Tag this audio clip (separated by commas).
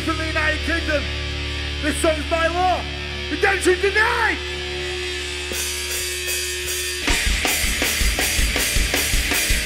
Speech, Music